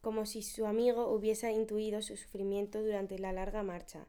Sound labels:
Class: speech